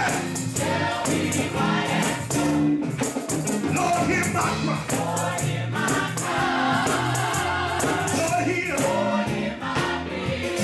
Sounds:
Female singing, Male singing, Music

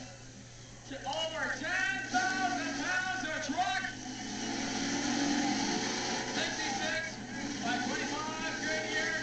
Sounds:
Vehicle, Speech

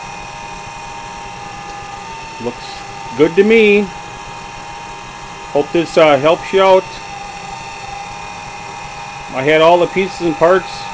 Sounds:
Speech, inside a small room

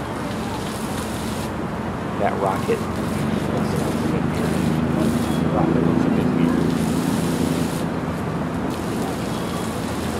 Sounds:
Speech

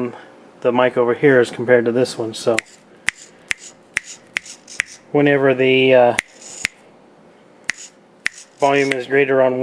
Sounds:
Speech

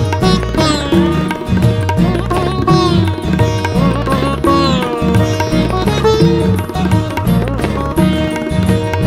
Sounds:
playing sitar

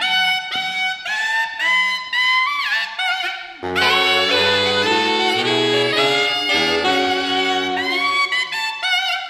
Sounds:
Saxophone, Brass instrument

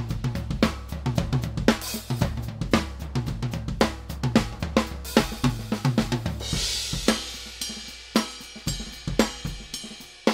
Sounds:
Drum, Hi-hat, Music, Musical instrument, Snare drum, Bass drum, Drum kit

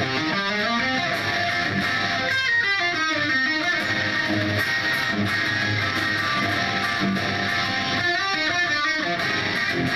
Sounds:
Strum, Music, Plucked string instrument, Electric guitar, Musical instrument, Guitar

